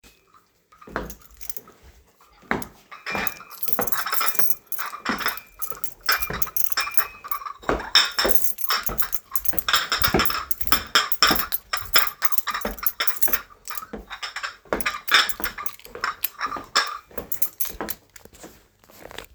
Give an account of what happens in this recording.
I am taking the dishes to the kitchen while my key is in my pocket.